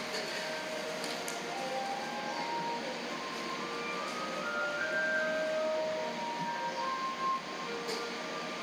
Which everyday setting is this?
cafe